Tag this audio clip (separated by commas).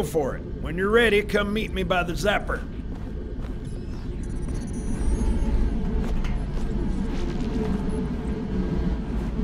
Speech